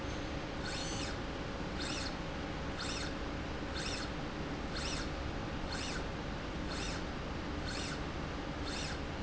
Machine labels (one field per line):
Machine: slide rail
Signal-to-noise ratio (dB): -6 dB